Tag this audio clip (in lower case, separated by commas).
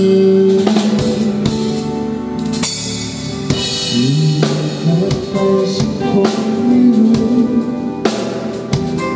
music